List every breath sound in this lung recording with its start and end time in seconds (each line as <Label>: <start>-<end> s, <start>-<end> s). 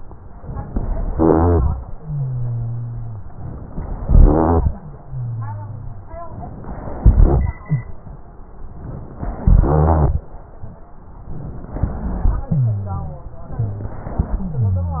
Inhalation: 3.30-4.02 s, 6.30-7.02 s, 8.75-9.41 s, 10.95-11.88 s, 13.59-14.29 s
Exhalation: 1.10-1.73 s, 4.04-4.67 s, 7.06-7.57 s, 9.43-10.36 s, 11.88-12.56 s, 14.29-14.99 s
Rhonchi: 1.10-1.73 s, 1.96-3.25 s, 4.04-4.76 s, 4.82-6.11 s, 7.06-7.57 s, 9.43-10.36 s, 11.88-12.56 s, 12.58-13.28 s, 14.46-14.99 s